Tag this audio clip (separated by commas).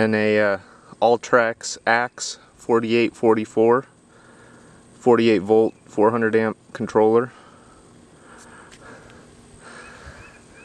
Speech